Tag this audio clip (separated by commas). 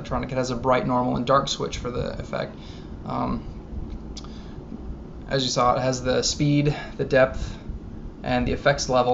Speech